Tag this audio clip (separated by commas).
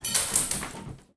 Coin (dropping), home sounds